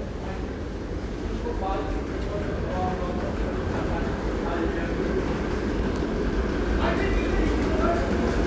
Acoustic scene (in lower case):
subway station